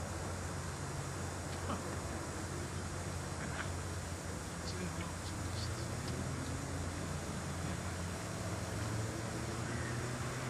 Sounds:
Speech

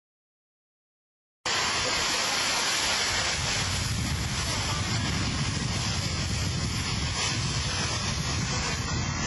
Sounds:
Fire, Wind noise (microphone), Wind

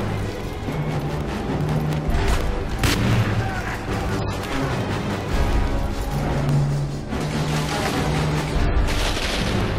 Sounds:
Music

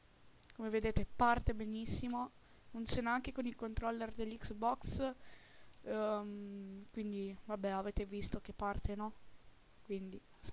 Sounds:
Speech

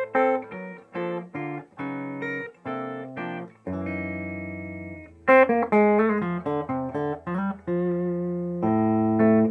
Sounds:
Electronic tuner, Guitar, Music, Plucked string instrument, Musical instrument, Electric guitar

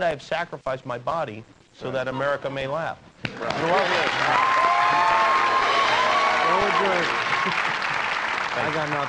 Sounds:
Speech

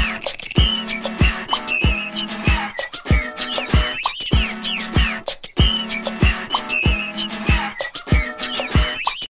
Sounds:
Whistling, Music

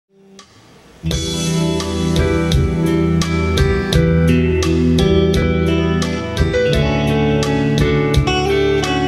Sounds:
Music, Musical instrument, Bass guitar, Plucked string instrument, Guitar

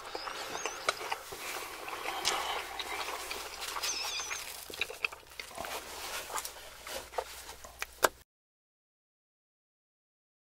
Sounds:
people eating noodle

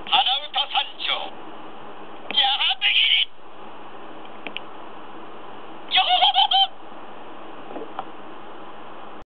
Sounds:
Speech

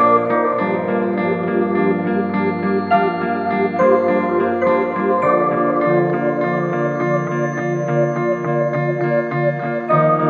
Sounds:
Electric piano

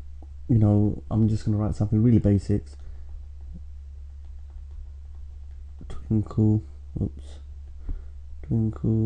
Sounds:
Speech

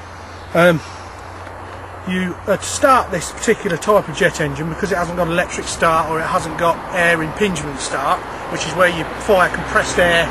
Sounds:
Speech

